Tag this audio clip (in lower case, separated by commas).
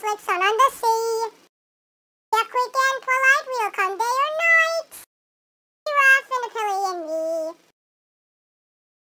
inside a small room, singing